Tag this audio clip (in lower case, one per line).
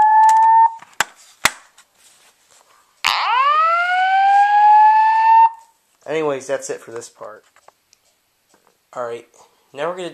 speech